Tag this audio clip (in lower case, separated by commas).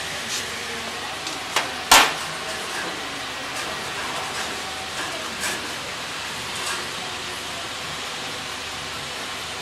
speech